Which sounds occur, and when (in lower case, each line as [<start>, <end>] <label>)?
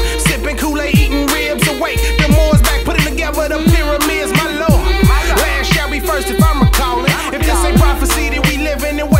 [0.01, 9.15] music
[0.07, 4.82] male singing
[4.99, 9.15] male singing